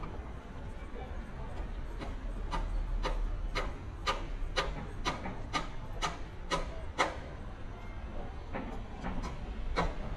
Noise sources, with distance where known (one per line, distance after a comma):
unidentified impact machinery, near